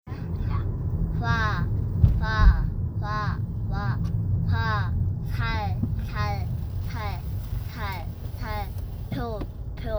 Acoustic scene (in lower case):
car